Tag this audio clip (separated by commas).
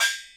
Music, Gong, Percussion, Musical instrument